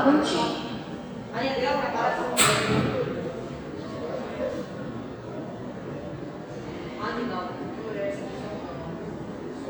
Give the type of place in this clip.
subway station